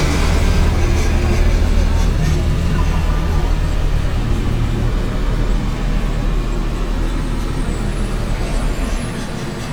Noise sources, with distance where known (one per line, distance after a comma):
engine of unclear size, near